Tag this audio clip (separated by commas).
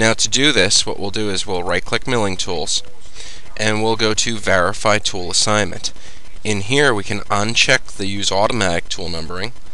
Speech